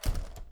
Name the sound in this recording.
window closing